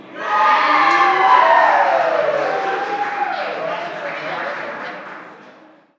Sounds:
Human group actions, Cheering, Applause

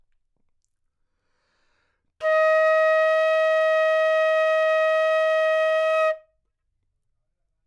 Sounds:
Music, Musical instrument, woodwind instrument

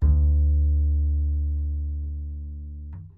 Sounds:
Musical instrument, Bowed string instrument, Music

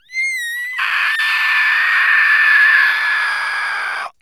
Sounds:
Screaming, Screech, Human voice

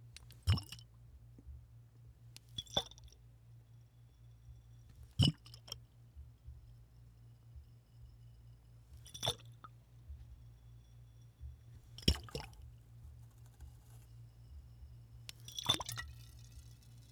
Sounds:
Splash, Liquid

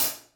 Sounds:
Cymbal, Hi-hat, Percussion, Musical instrument, Music

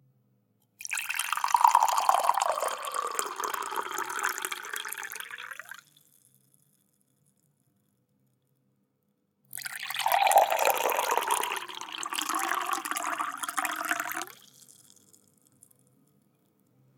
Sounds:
Liquid

